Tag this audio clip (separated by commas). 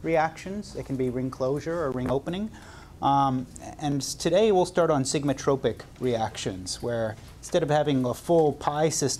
Speech